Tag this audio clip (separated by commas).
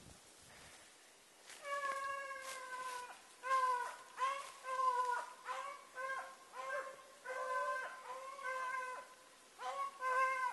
outside, rural or natural, Animal